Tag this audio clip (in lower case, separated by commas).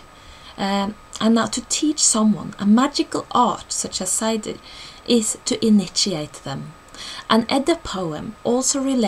monologue